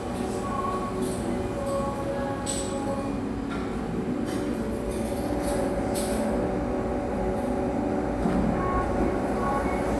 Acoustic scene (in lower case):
cafe